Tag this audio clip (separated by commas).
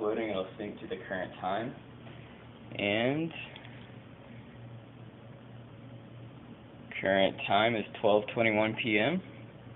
Speech